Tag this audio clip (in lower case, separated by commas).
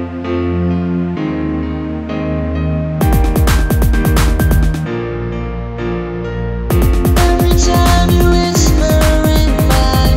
female singing, music